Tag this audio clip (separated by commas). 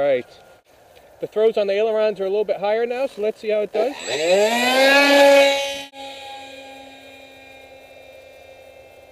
Vehicle